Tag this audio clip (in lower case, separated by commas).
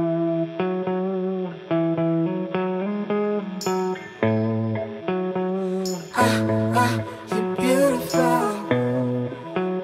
music